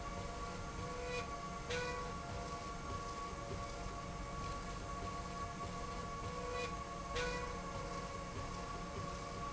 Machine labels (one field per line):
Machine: slide rail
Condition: normal